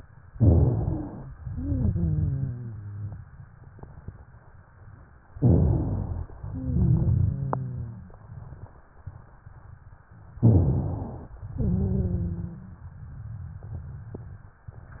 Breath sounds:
Inhalation: 0.28-1.30 s, 0.30-1.30 s, 10.35-11.38 s
Exhalation: 1.37-3.17 s, 6.41-8.14 s, 11.40-12.95 s
Wheeze: 1.37-3.17 s, 6.41-8.14 s, 11.48-12.85 s

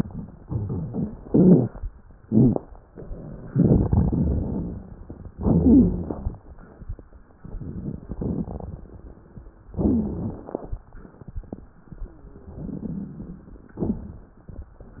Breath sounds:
Inhalation: 1.23-1.78 s, 5.33-6.32 s, 9.73-10.74 s
Exhalation: 0.38-1.14 s, 3.49-4.80 s
Crackles: 0.38-1.14 s, 1.23-1.78 s, 2.20-2.66 s, 3.49-4.80 s, 5.33-6.32 s, 9.73-10.74 s

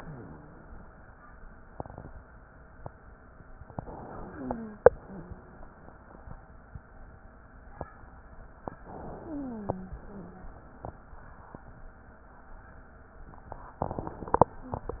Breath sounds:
Inhalation: 3.71-4.88 s, 8.79-9.94 s
Exhalation: 4.88-6.33 s, 9.94-11.09 s
Wheeze: 4.21-4.84 s, 4.98-5.67 s, 9.15-9.94 s

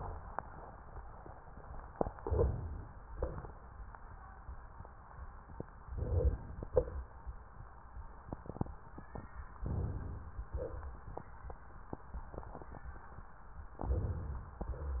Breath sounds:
Inhalation: 2.16-3.08 s, 5.91-6.67 s, 9.65-10.49 s, 13.83-14.60 s
Exhalation: 3.12-3.73 s, 6.67-7.17 s, 10.49-11.06 s
Rhonchi: 2.16-3.08 s

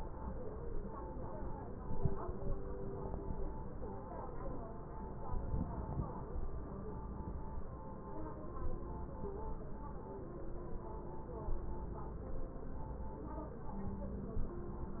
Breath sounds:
Inhalation: 5.33-6.19 s

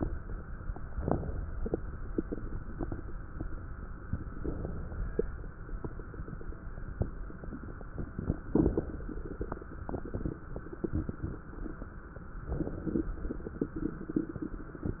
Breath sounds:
Inhalation: 4.04-5.55 s, 12.34-13.22 s
Crackles: 4.04-5.55 s, 12.34-13.22 s

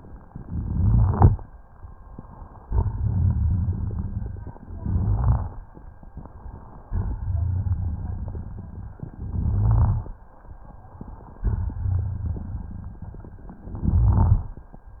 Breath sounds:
Inhalation: 0.21-1.33 s, 4.59-5.64 s, 9.13-10.17 s, 13.59-14.63 s
Exhalation: 2.60-4.55 s, 6.85-8.96 s, 11.37-13.51 s
Crackles: 0.21-1.33 s, 2.60-4.55 s, 4.59-5.64 s, 6.81-8.96 s, 9.13-10.17 s, 11.37-13.51 s, 13.59-14.63 s

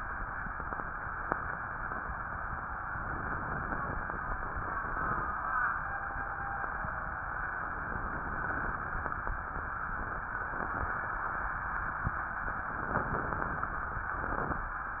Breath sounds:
Inhalation: 2.98-5.31 s, 7.80-9.51 s, 12.56-14.14 s

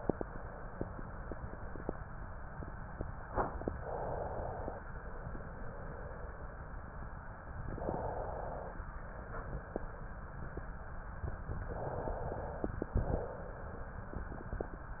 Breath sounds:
Inhalation: 3.71-4.85 s, 7.68-8.82 s, 11.63-12.78 s
Exhalation: 4.88-6.59 s, 8.84-10.10 s, 12.89-14.03 s

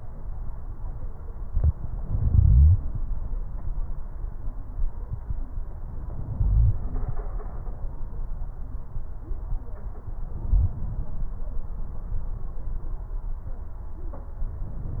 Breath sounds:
Inhalation: 1.97-2.87 s, 6.14-7.04 s, 10.30-11.20 s

